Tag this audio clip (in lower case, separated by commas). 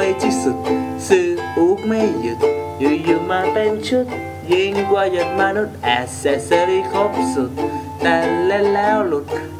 ukulele, music